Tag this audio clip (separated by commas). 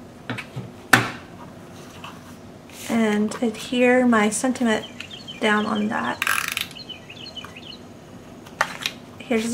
tweet, Speech, inside a small room